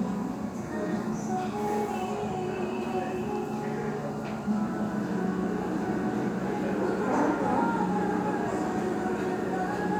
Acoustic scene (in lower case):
restaurant